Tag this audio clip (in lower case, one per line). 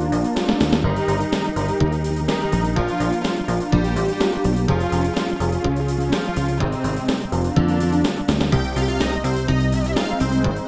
music
soundtrack music
video game music